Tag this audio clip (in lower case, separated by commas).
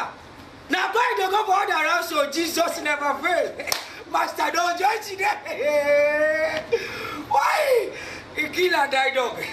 speech